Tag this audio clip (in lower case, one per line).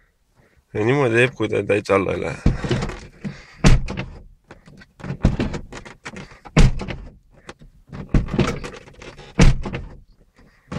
speech